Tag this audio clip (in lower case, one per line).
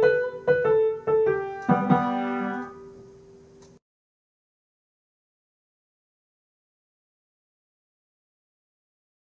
music